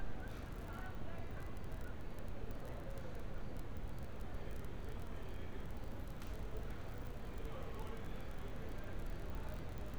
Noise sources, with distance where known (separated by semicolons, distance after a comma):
person or small group talking